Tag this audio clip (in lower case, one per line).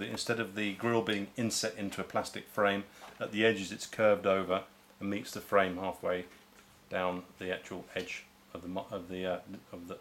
speech